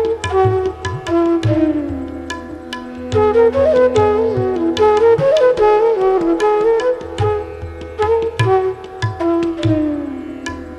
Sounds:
carnatic music, flute, wind instrument, music, musical instrument

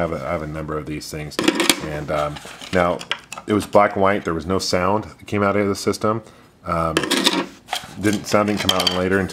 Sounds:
speech, inside a small room

